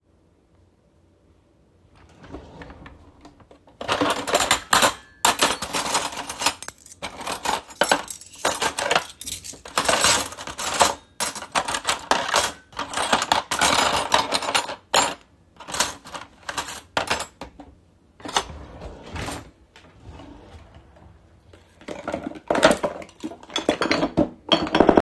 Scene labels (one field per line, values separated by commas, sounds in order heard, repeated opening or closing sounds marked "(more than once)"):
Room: kitchen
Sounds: wardrobe or drawer (more than once), cutlery and dishes